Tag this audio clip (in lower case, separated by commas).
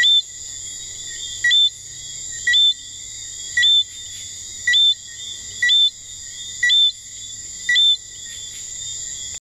frog